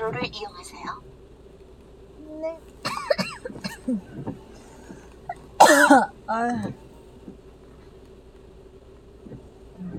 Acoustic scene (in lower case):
car